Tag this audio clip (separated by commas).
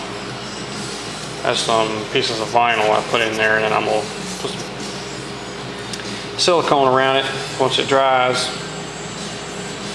inside a large room or hall, Music, Speech